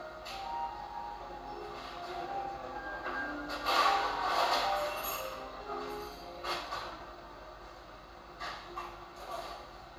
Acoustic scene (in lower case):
cafe